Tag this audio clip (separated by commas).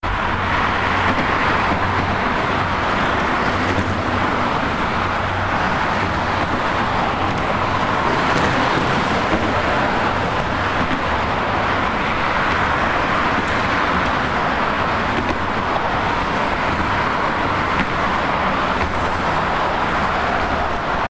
Vehicle, Traffic noise, Motor vehicle (road)